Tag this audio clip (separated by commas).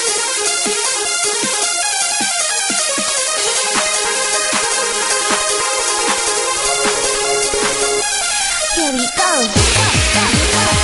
Pop music, Music